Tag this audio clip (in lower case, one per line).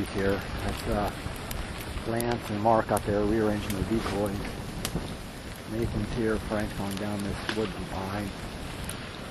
speech